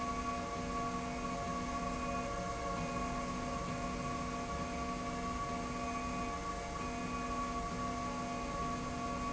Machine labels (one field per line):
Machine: slide rail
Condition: normal